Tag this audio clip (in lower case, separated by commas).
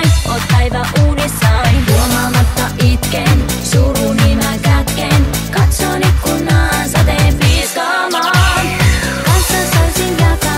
music